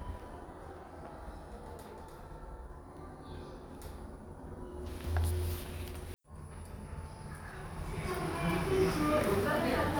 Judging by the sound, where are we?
in an elevator